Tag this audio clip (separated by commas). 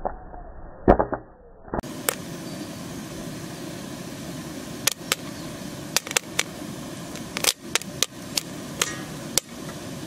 popping popcorn